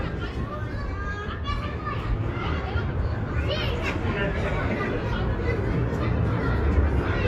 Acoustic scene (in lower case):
residential area